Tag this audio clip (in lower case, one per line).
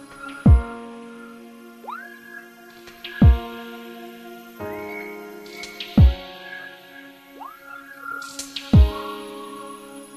music
dubstep